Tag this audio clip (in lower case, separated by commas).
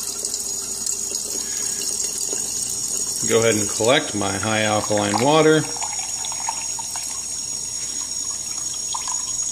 water, sink (filling or washing), pump (liquid)